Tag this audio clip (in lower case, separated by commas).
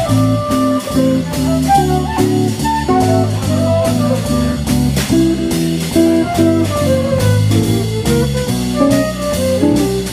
jazz, music, speech